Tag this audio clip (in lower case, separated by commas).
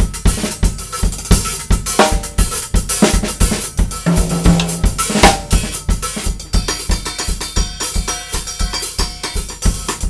drum, snare drum, bass drum, drum kit, percussion, rimshot